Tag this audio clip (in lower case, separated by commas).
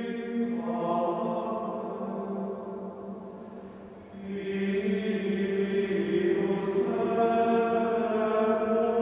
music